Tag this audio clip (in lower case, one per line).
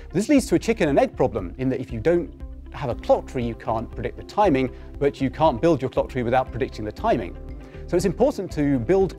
music
speech